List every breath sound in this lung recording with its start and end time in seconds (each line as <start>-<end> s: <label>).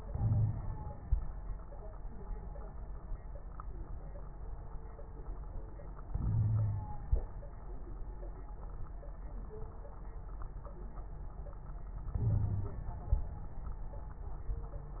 0.06-1.10 s: inhalation
0.17-0.57 s: wheeze
6.09-7.14 s: inhalation
6.26-6.90 s: wheeze
12.13-13.14 s: inhalation
12.23-12.79 s: wheeze